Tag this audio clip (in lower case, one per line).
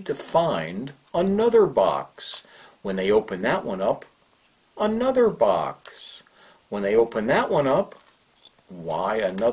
speech